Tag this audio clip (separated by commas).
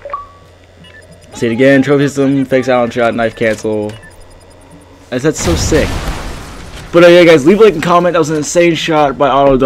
Speech